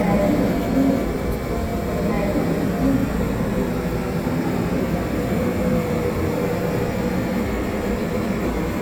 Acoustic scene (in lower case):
subway train